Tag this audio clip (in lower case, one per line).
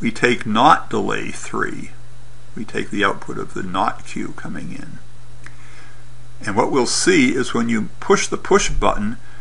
speech